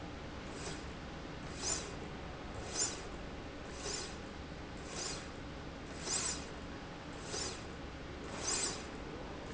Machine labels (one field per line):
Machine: slide rail